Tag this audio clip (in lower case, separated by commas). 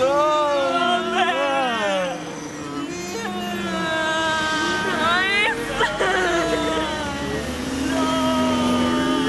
bus, vehicle, speech